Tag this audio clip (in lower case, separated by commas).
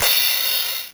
percussion, music, cymbal, crash cymbal, musical instrument